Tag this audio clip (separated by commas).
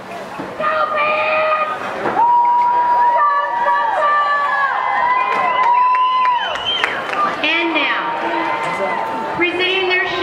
Speech